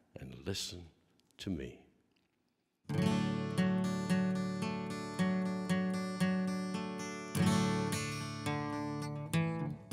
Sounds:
Speech, Music

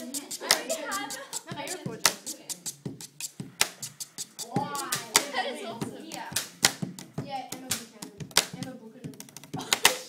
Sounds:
Speech, inside a small room

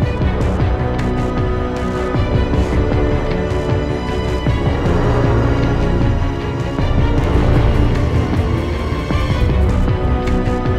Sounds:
Music, Soundtrack music, Theme music

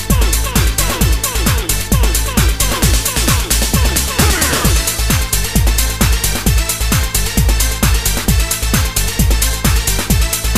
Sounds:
Electronic music, Music, Techno

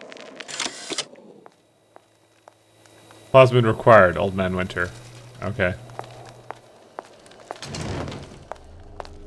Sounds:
inside a large room or hall, Speech

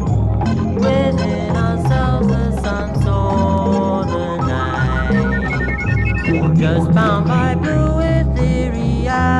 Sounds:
Hubbub, Music

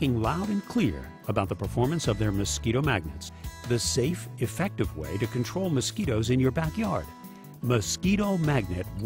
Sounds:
Speech, Music

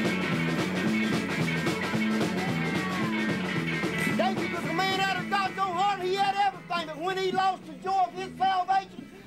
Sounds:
Music

